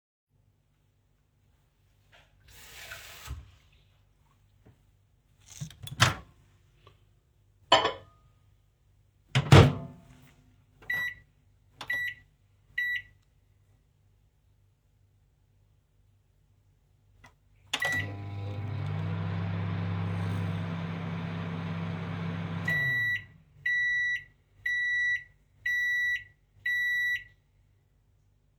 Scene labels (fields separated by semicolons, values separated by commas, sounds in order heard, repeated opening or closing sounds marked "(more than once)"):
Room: kitchen; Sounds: running water, microwave, cutlery and dishes